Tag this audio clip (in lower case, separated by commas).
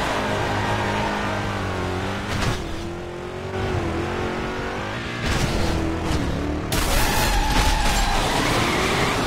vehicle, motor vehicle (road), car, skidding